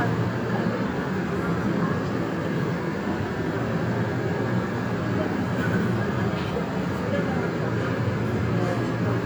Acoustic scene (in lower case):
subway train